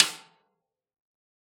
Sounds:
Drum, Musical instrument, Music, Percussion, Snare drum

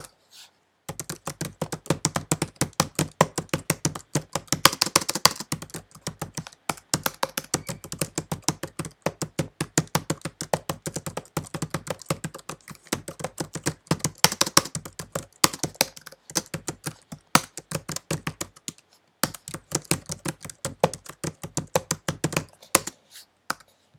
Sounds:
Typing, Domestic sounds, Computer keyboard

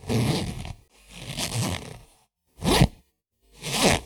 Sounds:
home sounds, Zipper (clothing)

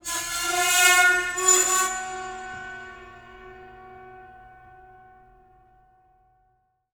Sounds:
Screech

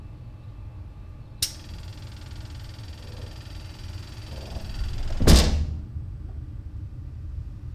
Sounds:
Train, Vehicle, Rail transport

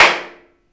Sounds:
Clapping, Hands

